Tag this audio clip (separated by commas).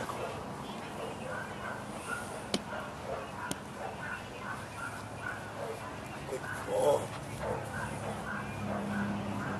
outside, rural or natural, Animal, pets, Dog